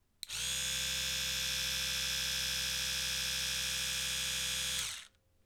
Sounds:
home sounds

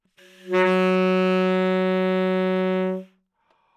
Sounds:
musical instrument
music
wind instrument

